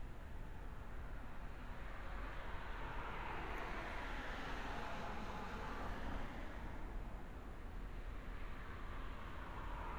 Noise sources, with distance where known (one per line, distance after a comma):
medium-sounding engine